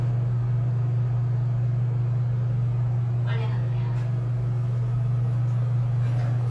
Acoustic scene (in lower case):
elevator